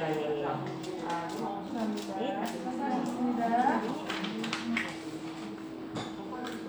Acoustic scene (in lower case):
crowded indoor space